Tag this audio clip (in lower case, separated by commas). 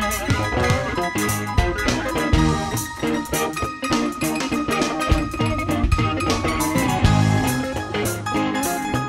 plucked string instrument, music, bass guitar, guitar, musical instrument